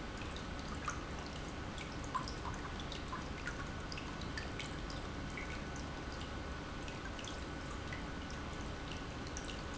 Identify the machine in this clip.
pump